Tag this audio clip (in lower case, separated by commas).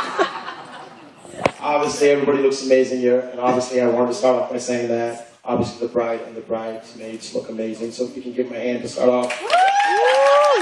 narration, speech, man speaking